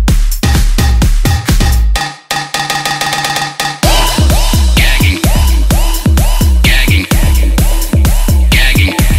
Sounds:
Music

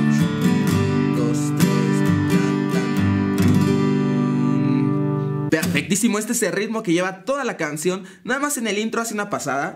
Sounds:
tapping guitar

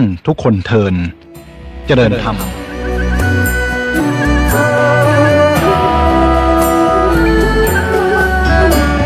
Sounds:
Speech, Music

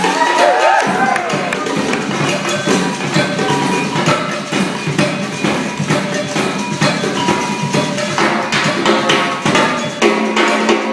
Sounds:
Glockenspiel, xylophone, Mallet percussion

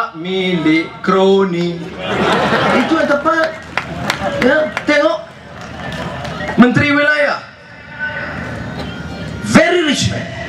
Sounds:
Speech, Male speech, monologue

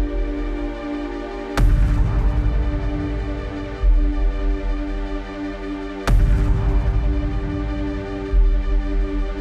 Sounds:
Music

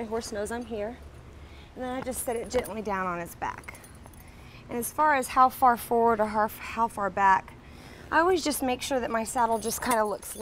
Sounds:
Speech

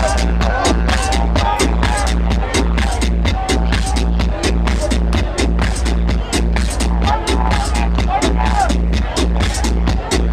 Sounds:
Music, Exciting music, Dance music

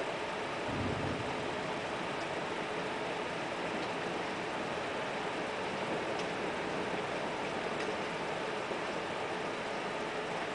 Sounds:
Rain on surface

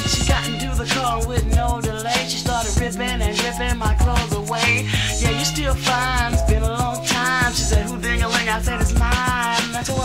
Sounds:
Music, Hip hop music

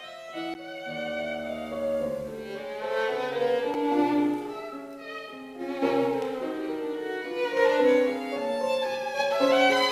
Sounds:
Music, Musical instrument, Violin

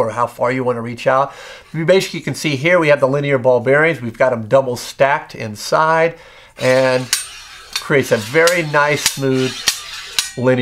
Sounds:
Speech

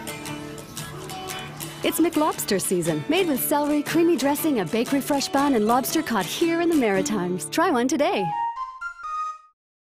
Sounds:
Music, Speech

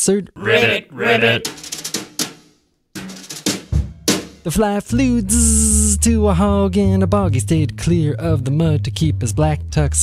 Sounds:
Music

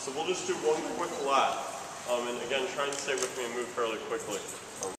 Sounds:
Speech

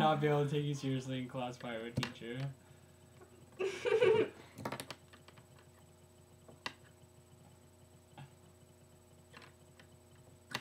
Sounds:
Speech, man speaking

